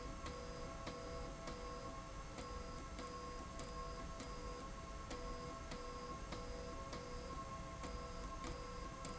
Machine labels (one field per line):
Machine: slide rail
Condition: abnormal